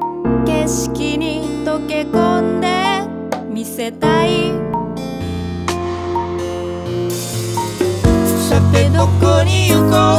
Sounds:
Music

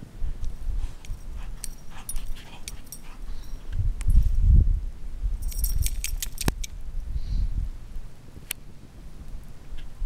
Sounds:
pets, Animal, Dog

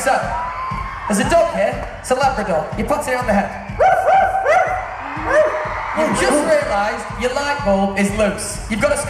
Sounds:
Music, Speech, Crowd

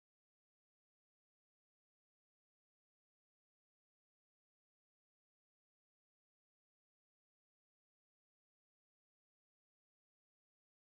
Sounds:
Silence

